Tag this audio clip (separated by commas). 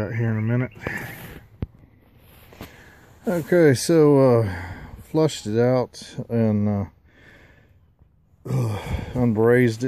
Speech, outside, urban or man-made